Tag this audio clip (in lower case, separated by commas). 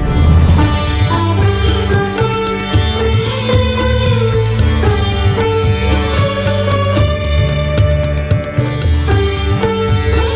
playing sitar